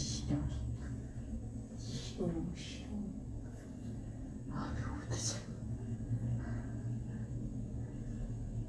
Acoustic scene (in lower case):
elevator